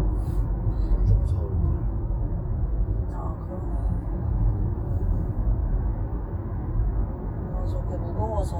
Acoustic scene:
car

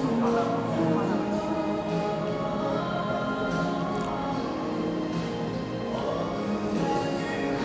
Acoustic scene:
cafe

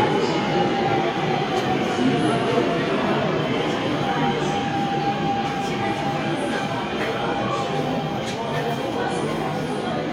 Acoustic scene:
subway station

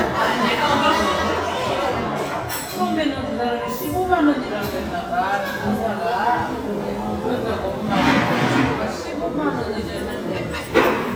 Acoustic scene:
restaurant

